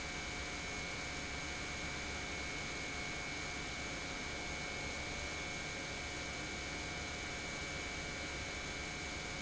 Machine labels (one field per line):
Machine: pump